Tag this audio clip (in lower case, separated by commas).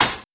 thud